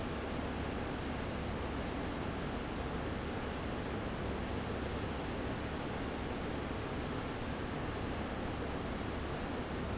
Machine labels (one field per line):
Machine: fan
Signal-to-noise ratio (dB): -6 dB